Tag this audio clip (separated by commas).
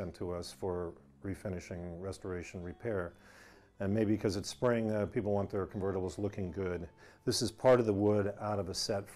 Speech